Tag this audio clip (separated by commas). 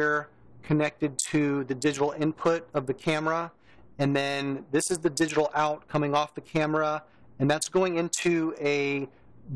Speech